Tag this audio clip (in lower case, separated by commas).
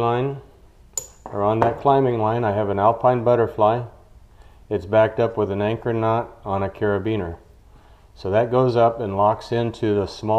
speech